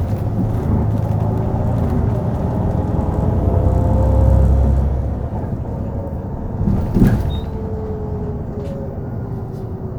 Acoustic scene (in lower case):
bus